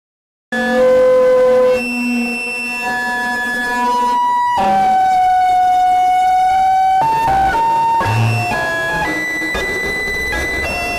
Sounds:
Music

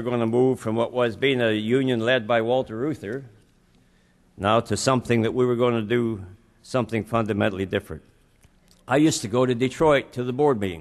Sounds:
Speech

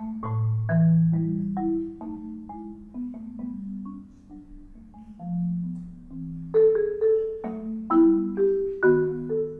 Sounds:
Music, Musical instrument

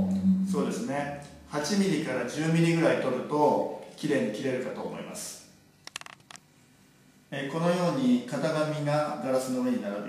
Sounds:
Speech

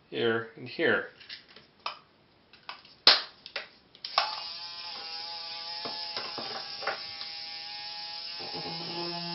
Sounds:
Speech

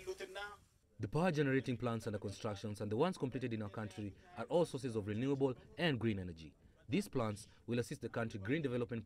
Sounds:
Speech

